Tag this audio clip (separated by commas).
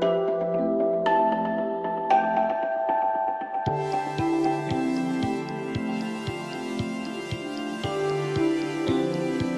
Music